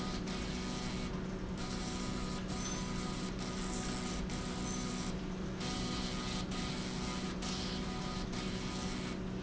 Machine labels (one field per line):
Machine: slide rail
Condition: abnormal